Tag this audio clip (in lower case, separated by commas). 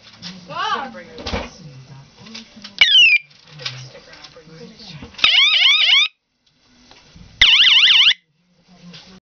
police car (siren), speech, emergency vehicle, siren